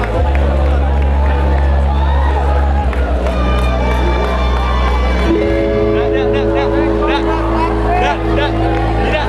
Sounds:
Music, Speech

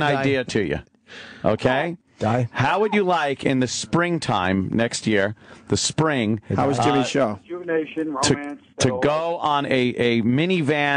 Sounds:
Speech

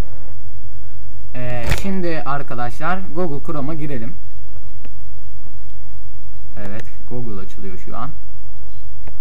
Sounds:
Speech

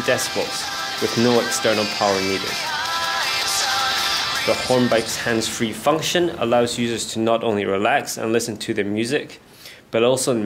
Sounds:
Speech, Music, outside, rural or natural

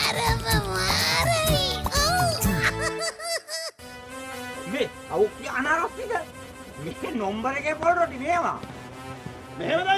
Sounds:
Music, Music for children, Speech

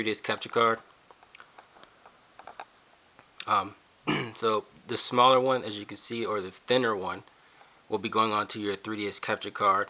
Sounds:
Speech, inside a small room

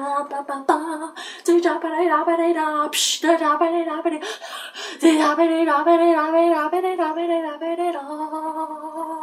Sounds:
Speech

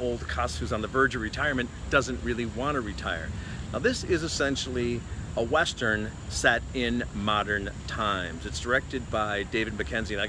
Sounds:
Speech

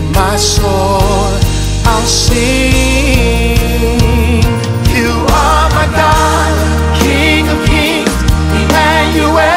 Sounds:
inside a large room or hall, Singing, Music

